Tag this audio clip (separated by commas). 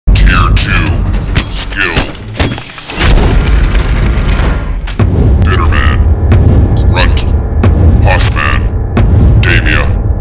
Music, Speech